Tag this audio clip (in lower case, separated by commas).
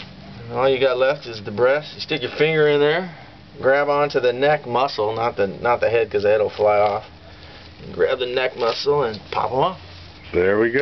speech